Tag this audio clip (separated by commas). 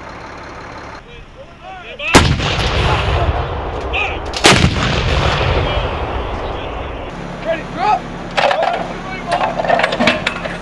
Speech